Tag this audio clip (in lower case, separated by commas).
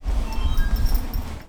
alarm, telephone